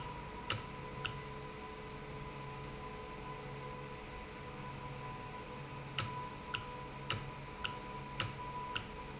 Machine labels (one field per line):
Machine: valve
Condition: normal